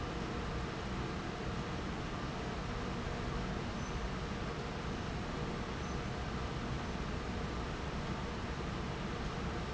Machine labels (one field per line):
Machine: fan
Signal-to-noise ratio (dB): -6 dB